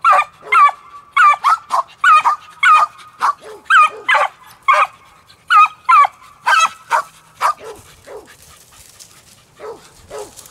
Several dogs are barking